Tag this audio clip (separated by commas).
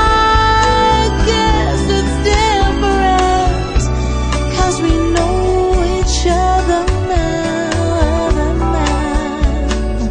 Soul music